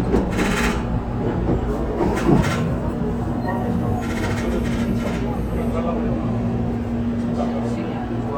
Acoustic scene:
subway train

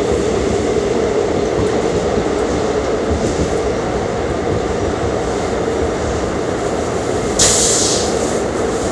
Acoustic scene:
subway train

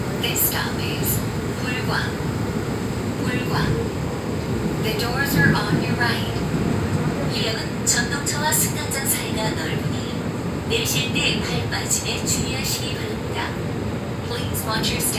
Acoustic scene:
subway train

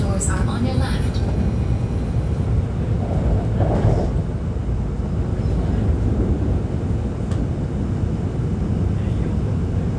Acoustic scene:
subway train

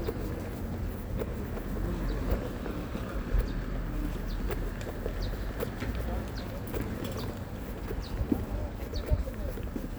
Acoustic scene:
park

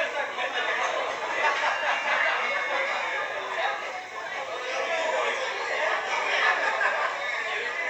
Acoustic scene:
crowded indoor space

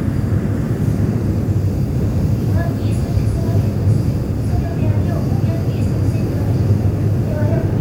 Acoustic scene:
subway train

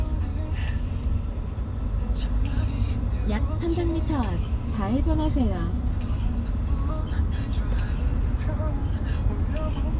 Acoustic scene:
car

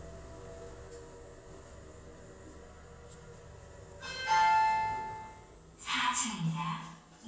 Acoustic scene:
elevator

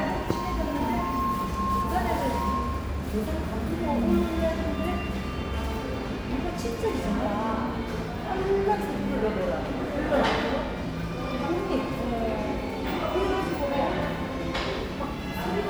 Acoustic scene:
cafe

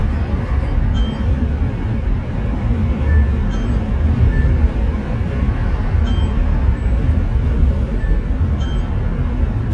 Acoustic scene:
car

